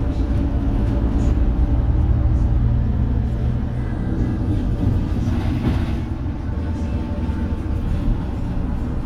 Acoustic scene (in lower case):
bus